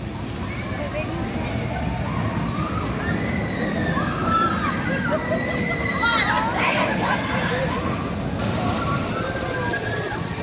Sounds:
roller coaster running

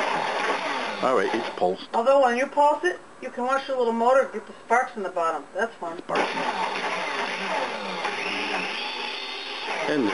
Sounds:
Blender, Speech

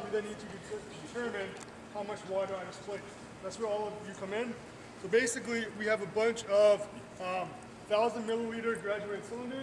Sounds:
Speech

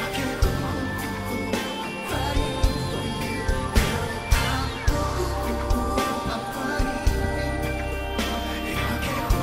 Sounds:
Music

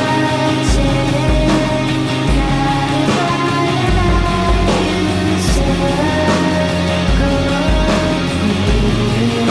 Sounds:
Music

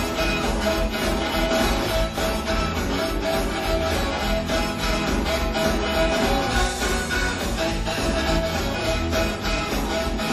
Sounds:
Music, Rock and roll, Roll

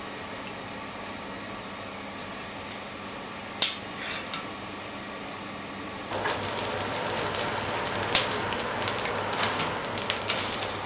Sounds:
forging swords

